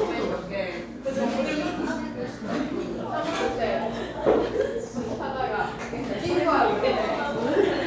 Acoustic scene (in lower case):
cafe